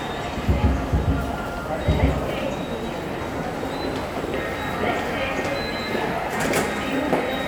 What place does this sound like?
subway station